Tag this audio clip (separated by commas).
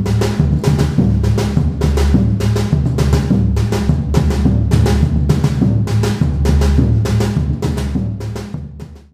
Percussion, Music